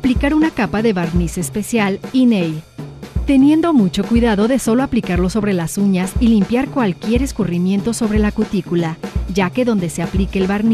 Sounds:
Speech, Music

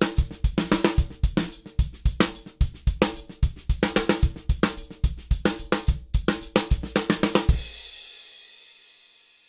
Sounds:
Percussion, Musical instrument, Music, Drum, Drum kit, Snare drum, Bass drum

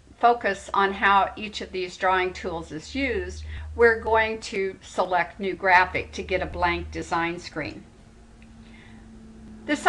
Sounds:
Speech

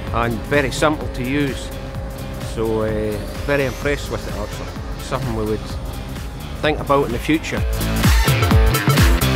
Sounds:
Music, Speech

